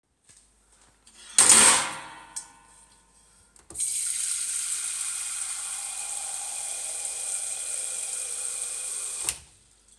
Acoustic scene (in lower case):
kitchen